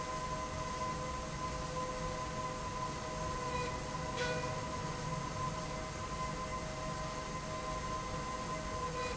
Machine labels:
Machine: slide rail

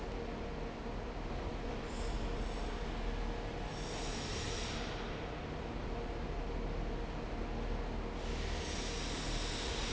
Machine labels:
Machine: fan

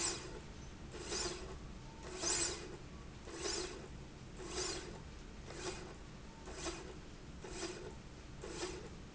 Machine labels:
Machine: slide rail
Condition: normal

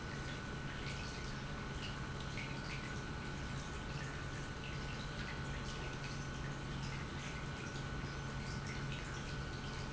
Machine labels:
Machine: pump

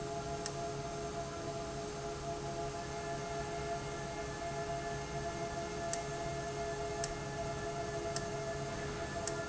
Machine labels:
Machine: valve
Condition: abnormal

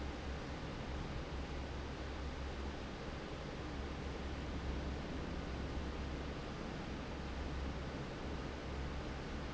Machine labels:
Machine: fan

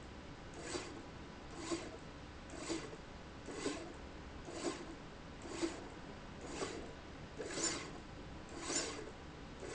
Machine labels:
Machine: slide rail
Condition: abnormal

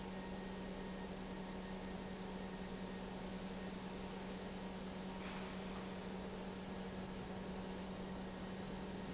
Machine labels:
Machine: pump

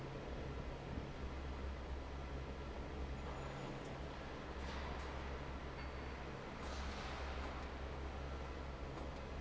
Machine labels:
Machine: fan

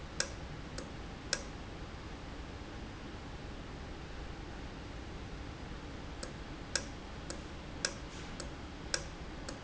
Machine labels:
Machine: valve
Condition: normal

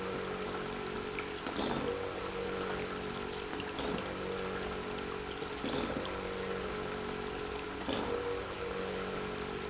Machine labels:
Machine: pump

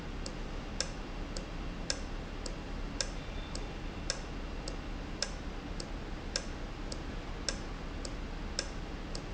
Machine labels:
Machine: valve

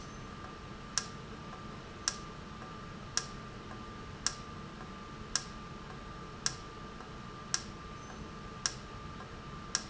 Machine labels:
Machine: valve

